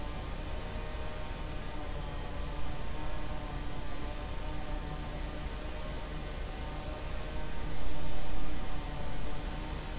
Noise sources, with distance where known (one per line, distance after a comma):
small or medium rotating saw